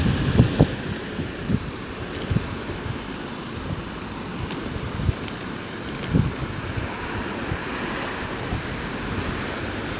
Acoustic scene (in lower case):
street